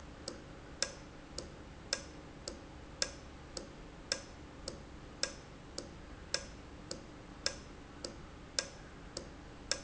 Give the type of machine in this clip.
valve